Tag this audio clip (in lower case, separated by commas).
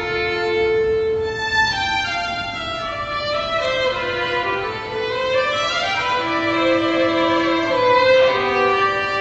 fiddle, musical instrument, violin, music